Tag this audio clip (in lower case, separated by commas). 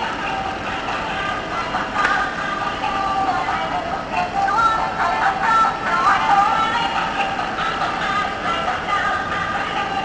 music